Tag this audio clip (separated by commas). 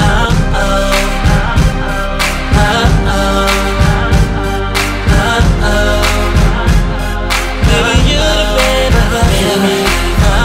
Music